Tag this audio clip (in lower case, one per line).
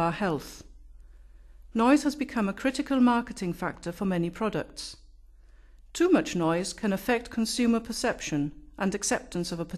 speech